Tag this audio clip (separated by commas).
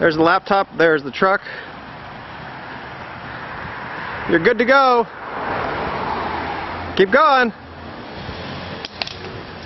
Vehicle, Car, Speech